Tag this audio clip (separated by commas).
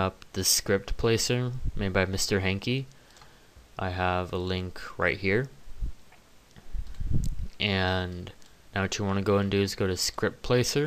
Speech